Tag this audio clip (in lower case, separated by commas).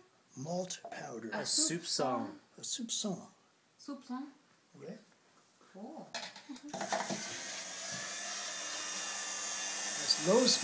speech